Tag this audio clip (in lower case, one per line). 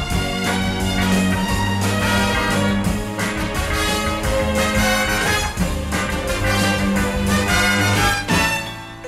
music
orchestra